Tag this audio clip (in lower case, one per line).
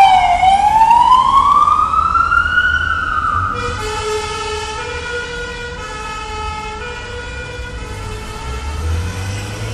vehicle
siren
police car (siren)